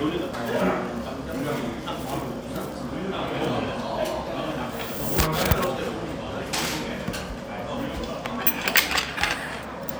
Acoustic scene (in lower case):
restaurant